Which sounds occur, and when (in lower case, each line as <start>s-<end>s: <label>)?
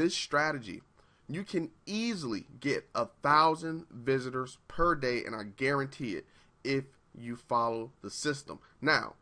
0.0s-0.9s: male speech
0.0s-9.2s: background noise
0.9s-1.2s: breathing
1.2s-1.6s: male speech
1.8s-2.4s: male speech
2.6s-2.8s: male speech
2.9s-3.1s: male speech
3.2s-4.5s: male speech
4.6s-6.2s: male speech
6.2s-6.5s: breathing
6.6s-7.0s: male speech
7.1s-7.9s: male speech
8.0s-8.6s: male speech
8.6s-8.8s: breathing
8.8s-9.2s: male speech